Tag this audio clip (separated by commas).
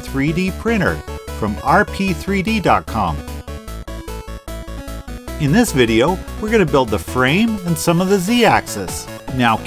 Music, Speech